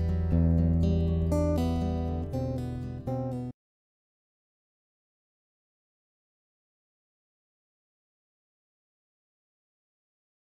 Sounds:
Guitar, Musical instrument, Music, Acoustic guitar, Plucked string instrument

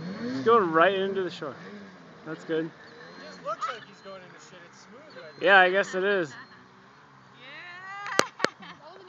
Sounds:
Speech

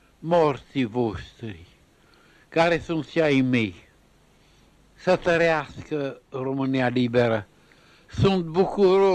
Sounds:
Speech

